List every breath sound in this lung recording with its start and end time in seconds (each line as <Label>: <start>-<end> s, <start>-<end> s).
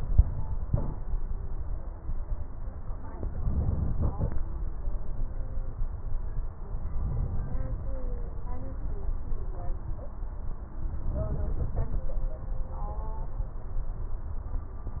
Inhalation: 3.22-4.43 s, 6.87-7.97 s, 11.01-12.10 s